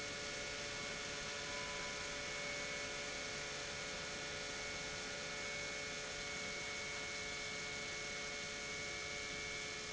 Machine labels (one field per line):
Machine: pump